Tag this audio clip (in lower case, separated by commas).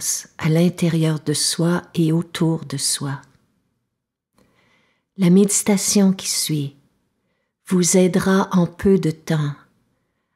speech